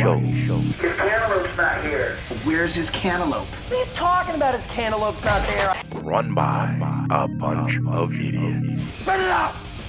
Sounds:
music
speech

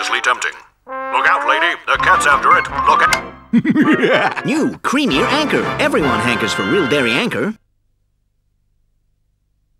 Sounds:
music
speech

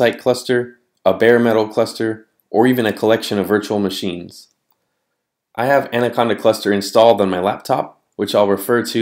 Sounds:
speech

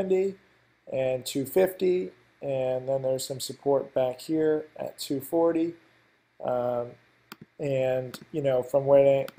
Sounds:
speech

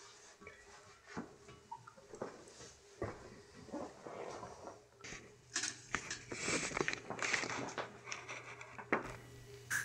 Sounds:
music
inside a small room

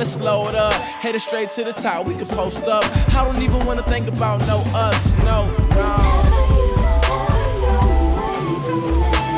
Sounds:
music
rapping

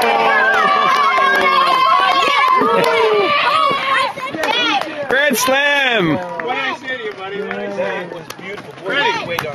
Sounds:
speech

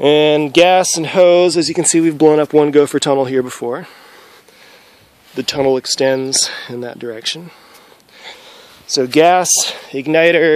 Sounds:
speech

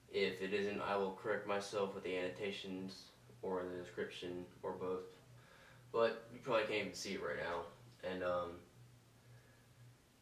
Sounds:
speech

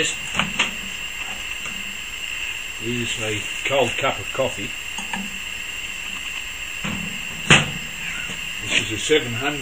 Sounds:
speech
microwave oven

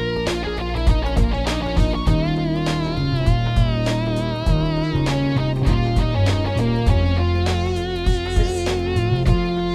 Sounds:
slide guitar
music

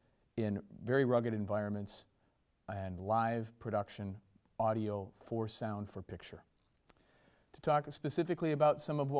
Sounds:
speech

